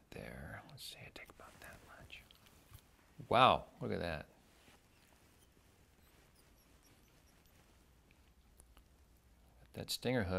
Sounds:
Speech, Whispering, people whispering

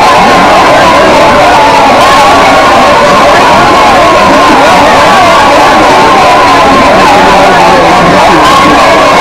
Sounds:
Speech

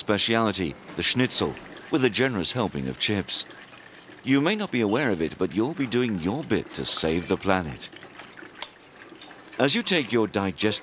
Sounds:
Speech

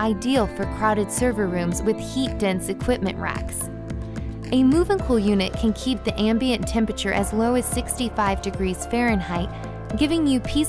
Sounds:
Music, Speech

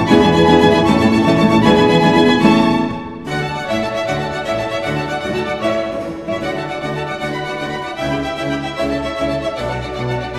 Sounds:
Music, Orchestra, Plucked string instrument, Guitar, Musical instrument

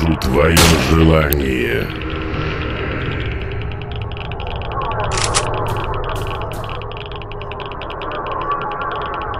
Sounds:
Speech

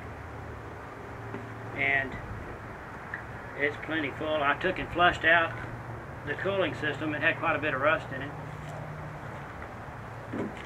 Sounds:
Speech

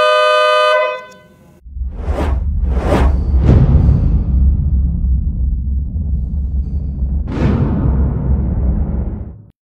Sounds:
Music, Vehicle horn

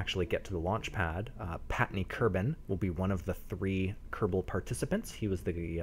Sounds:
Speech

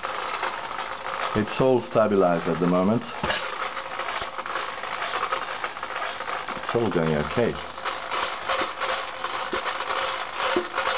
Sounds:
Speech

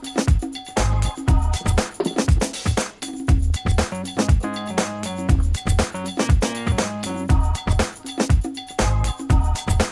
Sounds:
Music

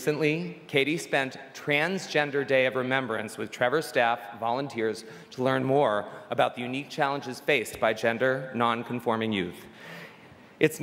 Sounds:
Speech, monologue, Male speech

